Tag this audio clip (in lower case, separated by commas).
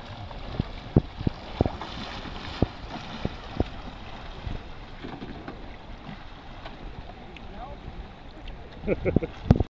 vehicle, canoe, water vehicle, speech